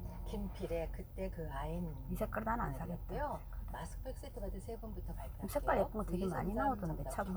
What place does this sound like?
car